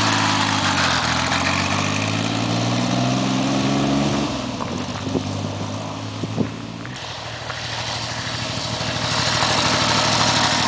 Wind sounds motorcycle engine